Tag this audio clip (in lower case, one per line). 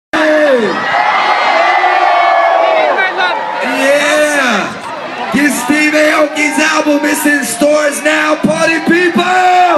cheering
crowd